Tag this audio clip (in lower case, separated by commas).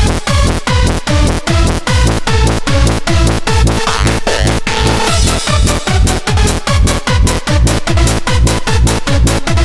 techno, music